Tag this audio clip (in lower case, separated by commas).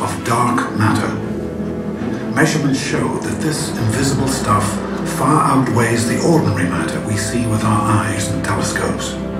speech, music